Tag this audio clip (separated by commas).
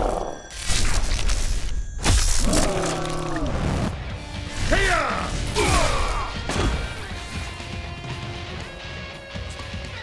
Music